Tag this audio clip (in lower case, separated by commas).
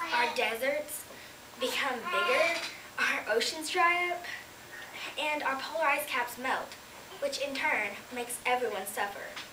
kid speaking, female speech, monologue, speech